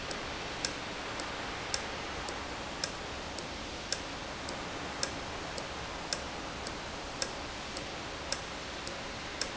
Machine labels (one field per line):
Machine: valve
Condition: normal